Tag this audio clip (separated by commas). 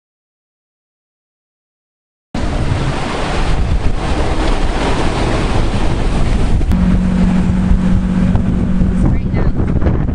Speech, ocean burbling, Vehicle, Water vehicle, Ocean